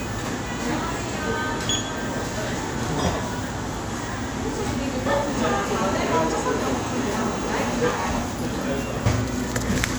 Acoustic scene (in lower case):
crowded indoor space